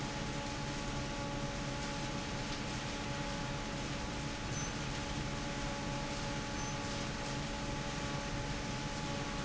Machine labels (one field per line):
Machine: fan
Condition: normal